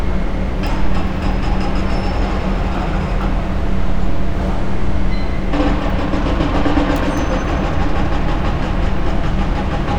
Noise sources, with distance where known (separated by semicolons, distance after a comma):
rock drill, far